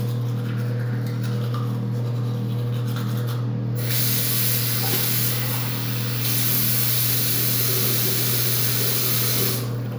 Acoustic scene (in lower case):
restroom